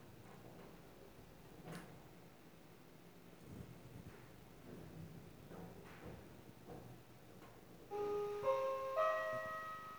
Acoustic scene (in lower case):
elevator